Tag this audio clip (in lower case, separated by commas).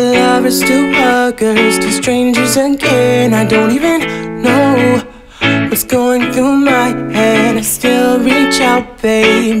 exciting music, music